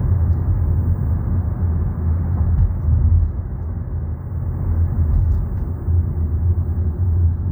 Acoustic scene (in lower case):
car